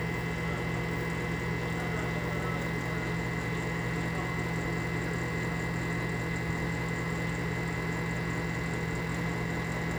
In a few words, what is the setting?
kitchen